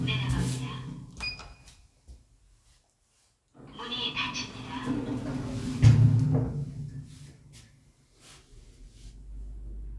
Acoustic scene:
elevator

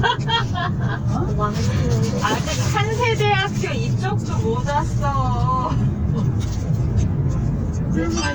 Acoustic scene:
car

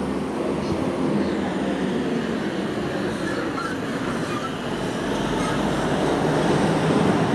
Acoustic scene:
street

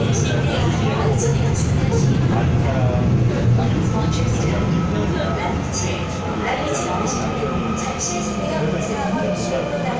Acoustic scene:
subway train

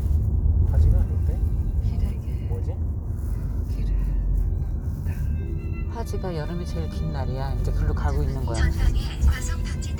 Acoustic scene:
car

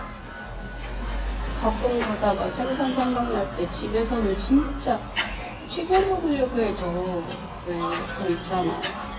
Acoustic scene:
restaurant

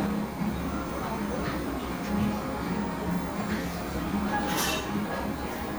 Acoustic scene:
cafe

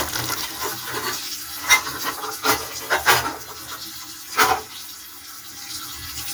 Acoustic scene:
kitchen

